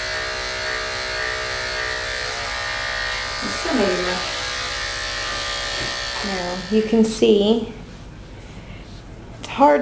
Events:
0.0s-7.0s: electric razor
3.4s-4.2s: female speech
6.1s-6.5s: female speech
6.7s-7.6s: female speech
7.0s-9.8s: mechanisms
7.7s-8.0s: surface contact
8.2s-9.0s: surface contact
9.4s-9.4s: tick
9.4s-9.8s: female speech

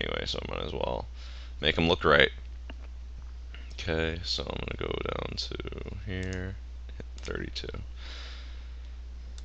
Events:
0.0s-1.0s: man speaking
0.0s-9.4s: mechanisms
1.1s-1.5s: breathing
1.6s-2.3s: man speaking
2.4s-2.5s: clicking
2.7s-2.9s: clicking
3.5s-3.7s: breathing
3.7s-6.6s: man speaking
6.2s-6.4s: clicking
6.9s-7.0s: clicking
7.2s-7.8s: man speaking
7.9s-8.8s: breathing
8.8s-8.9s: clicking
9.3s-9.4s: clicking

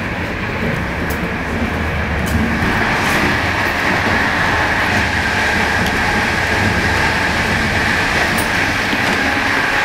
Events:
0.0s-9.8s: train
0.7s-1.2s: generic impact sounds
2.2s-2.4s: generic impact sounds
5.8s-6.0s: generic impact sounds
8.9s-9.2s: generic impact sounds

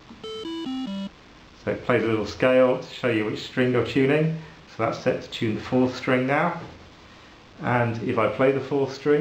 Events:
0.0s-9.2s: mechanisms
0.2s-1.1s: music
1.6s-4.3s: male speech
4.4s-4.6s: breathing
4.8s-6.7s: male speech
6.5s-6.8s: generic impact sounds
7.6s-9.2s: male speech

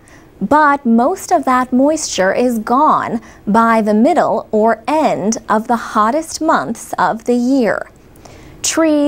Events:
0.0s-0.3s: breathing
0.0s-9.0s: mechanisms
0.4s-3.2s: female speech
3.2s-3.4s: breathing
3.4s-4.4s: female speech
4.5s-7.9s: female speech
7.8s-8.1s: generic impact sounds
8.2s-8.6s: breathing

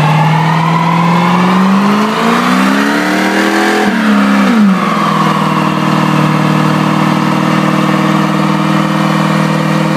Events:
0.0s-3.9s: vroom
0.0s-9.9s: engine
3.9s-6.3s: tire squeal

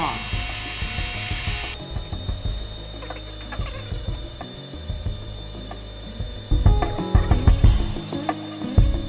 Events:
0.0s-0.2s: human voice
0.0s-1.7s: power tool
0.0s-9.0s: music
1.7s-9.0s: mechanisms

